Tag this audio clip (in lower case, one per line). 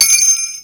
bell